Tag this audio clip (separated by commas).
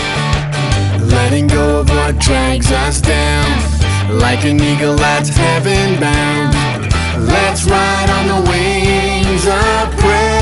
Music